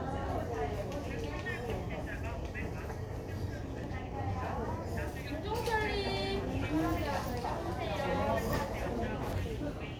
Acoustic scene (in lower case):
crowded indoor space